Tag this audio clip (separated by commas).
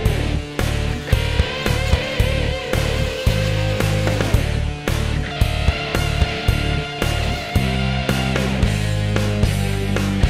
Music